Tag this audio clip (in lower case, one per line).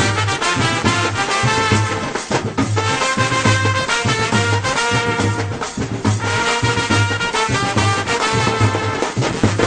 music